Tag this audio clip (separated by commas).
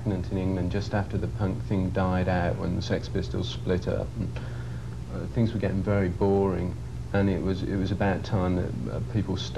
Speech